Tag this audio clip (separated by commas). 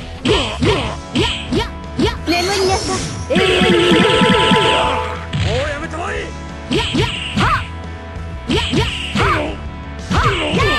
Speech, Music